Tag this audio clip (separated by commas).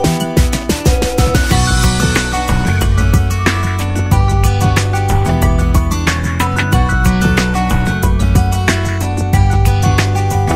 Music